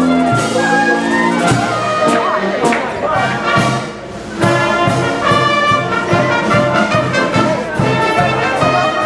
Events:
0.0s-9.0s: speech babble
0.0s-9.0s: music
2.5s-2.9s: clapping

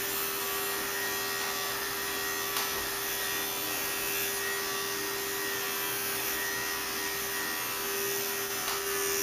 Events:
0.0s-9.2s: electric razor
2.5s-2.6s: generic impact sounds
8.5s-8.8s: generic impact sounds

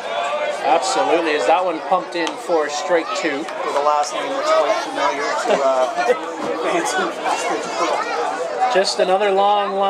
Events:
0.0s-9.8s: crowd
0.0s-9.8s: speech babble
0.5s-3.4s: male speech
3.7s-6.2s: male speech
6.4s-8.2s: male speech
8.6s-9.8s: male speech

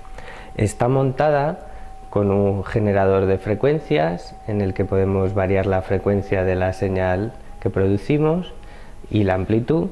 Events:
0.0s-0.6s: breathing
0.0s-9.9s: mechanisms
0.5s-1.6s: male speech
2.0s-4.2s: male speech
4.5s-7.3s: male speech
7.6s-8.4s: male speech
8.5s-9.0s: breathing
9.0s-9.9s: male speech

